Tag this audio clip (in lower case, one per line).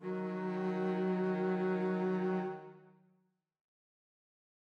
music
bowed string instrument
musical instrument